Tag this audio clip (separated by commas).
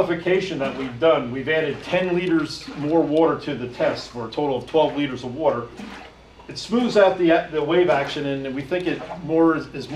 Speech, Slosh